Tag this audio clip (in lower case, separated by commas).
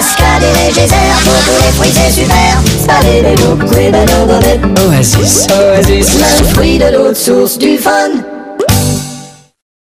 speech, synthetic singing, music, child singing